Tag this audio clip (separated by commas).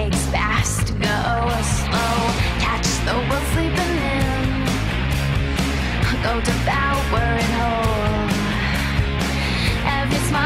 Music